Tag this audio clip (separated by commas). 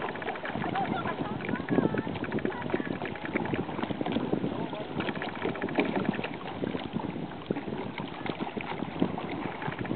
Speech, Vehicle, canoe, Water vehicle